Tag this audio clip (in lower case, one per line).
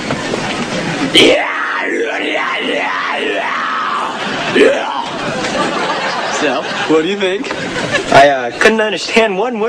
speech